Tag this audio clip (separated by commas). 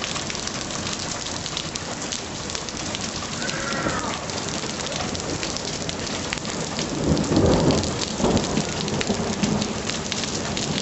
Rain on surface, Rain, Raindrop